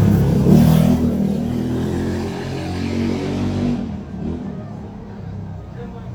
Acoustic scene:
street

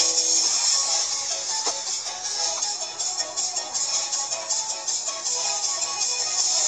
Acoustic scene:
car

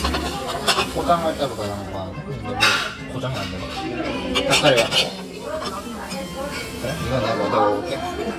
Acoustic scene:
restaurant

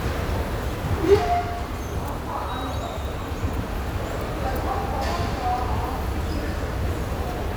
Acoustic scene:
subway station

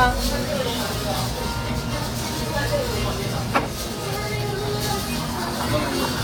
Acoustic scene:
restaurant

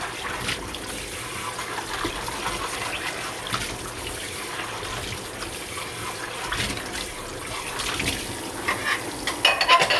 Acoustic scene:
kitchen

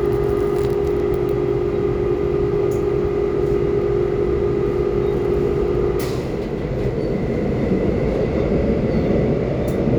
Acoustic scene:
subway train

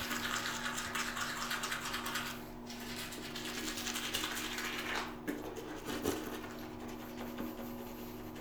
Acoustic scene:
restroom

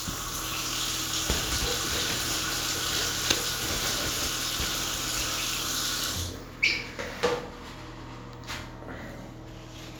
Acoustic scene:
restroom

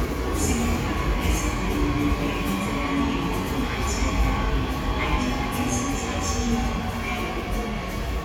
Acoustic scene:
subway station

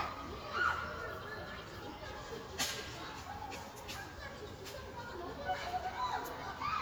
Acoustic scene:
park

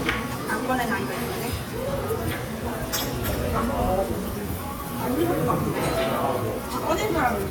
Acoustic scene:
restaurant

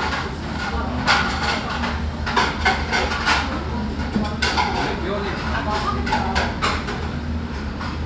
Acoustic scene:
restaurant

